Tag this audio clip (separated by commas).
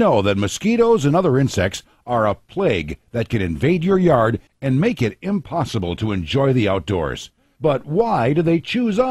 Speech